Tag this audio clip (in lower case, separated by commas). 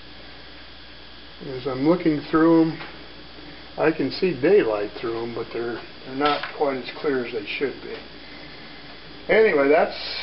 speech, inside a small room